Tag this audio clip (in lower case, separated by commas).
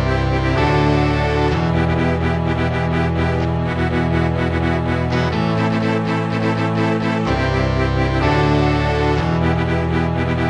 video game music, musical instrument